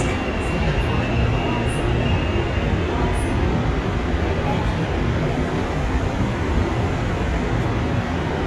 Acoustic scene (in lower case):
subway train